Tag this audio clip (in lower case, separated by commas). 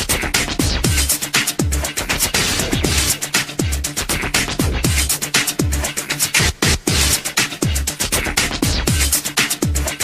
theme music, music, soundtrack music